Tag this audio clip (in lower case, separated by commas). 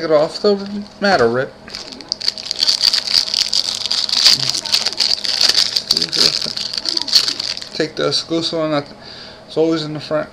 speech